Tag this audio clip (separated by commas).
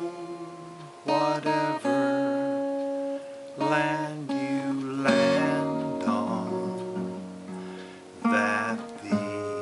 Music